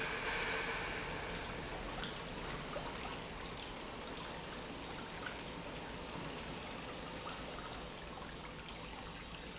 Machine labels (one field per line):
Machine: pump